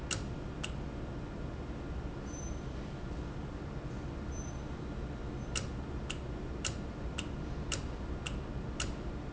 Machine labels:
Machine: valve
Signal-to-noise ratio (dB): -6 dB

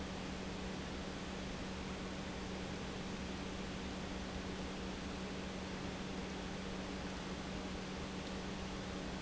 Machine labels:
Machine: pump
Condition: normal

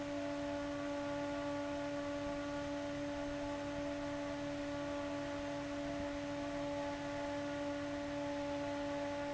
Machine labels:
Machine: fan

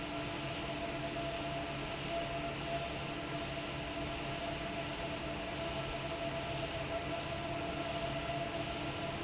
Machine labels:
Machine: fan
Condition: normal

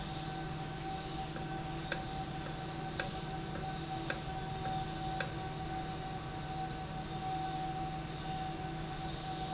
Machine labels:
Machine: valve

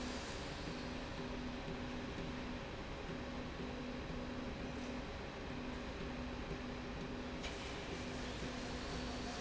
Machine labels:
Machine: slide rail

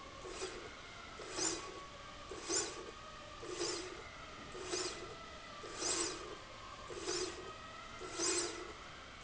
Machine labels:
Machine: slide rail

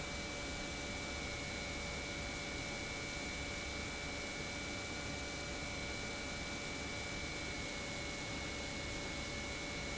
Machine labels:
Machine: pump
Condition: normal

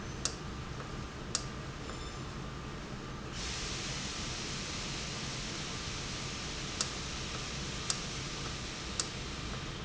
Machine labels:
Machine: valve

